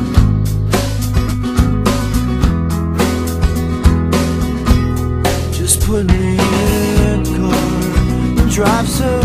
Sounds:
music

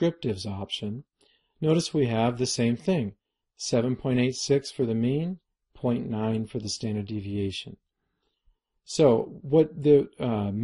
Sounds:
speech, narration

